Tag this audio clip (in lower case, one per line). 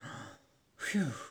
breathing
human voice
respiratory sounds